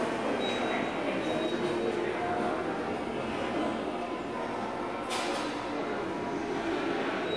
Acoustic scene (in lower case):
subway station